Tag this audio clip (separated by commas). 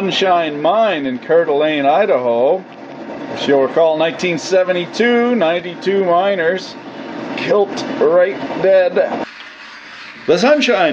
arc welding